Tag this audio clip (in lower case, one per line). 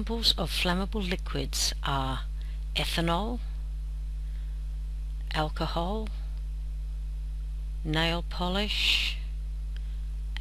speech